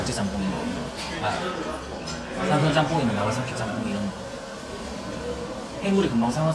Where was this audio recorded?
in a restaurant